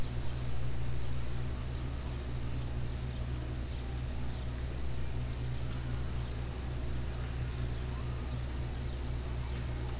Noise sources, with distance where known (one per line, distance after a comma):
engine of unclear size